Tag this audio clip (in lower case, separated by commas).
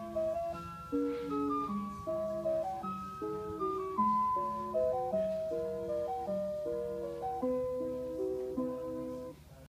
music